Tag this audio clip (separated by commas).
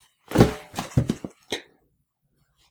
Thump